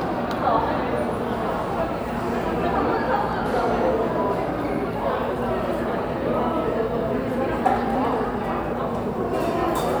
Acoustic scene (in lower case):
cafe